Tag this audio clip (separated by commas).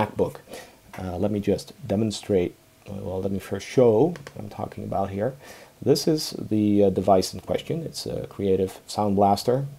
inside a small room, Speech